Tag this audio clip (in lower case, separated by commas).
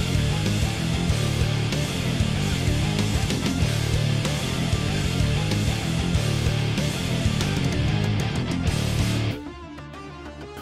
music